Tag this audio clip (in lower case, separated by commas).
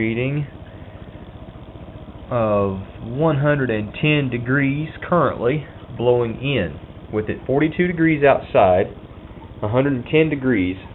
inside a small room, speech